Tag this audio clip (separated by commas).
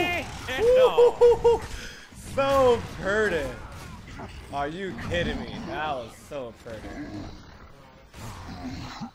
Speech